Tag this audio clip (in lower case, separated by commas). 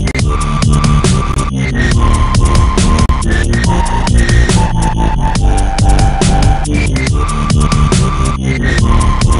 electronic music, music, dubstep